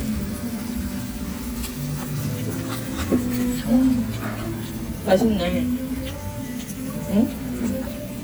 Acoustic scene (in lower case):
restaurant